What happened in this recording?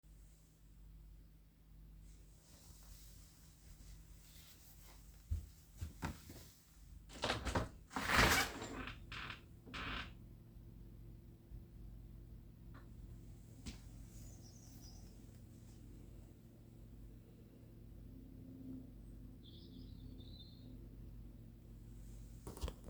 I walked over to the window to open it. The birds were chirping outside.